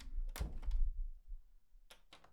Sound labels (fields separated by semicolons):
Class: door; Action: closing; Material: wooden